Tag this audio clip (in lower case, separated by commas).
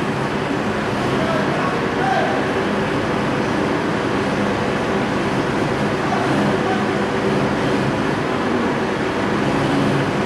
speech